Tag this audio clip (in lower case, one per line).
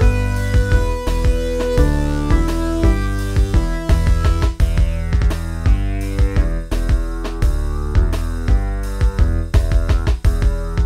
music